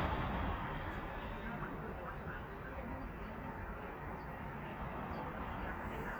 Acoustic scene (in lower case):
residential area